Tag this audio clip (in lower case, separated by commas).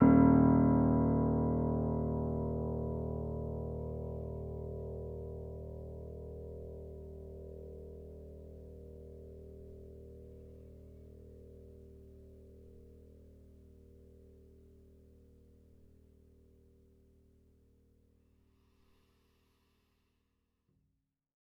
musical instrument, keyboard (musical), music, piano